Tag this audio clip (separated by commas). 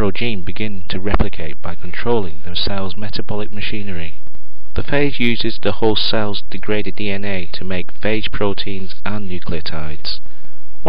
Speech